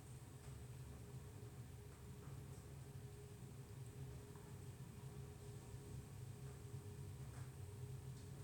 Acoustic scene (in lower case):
elevator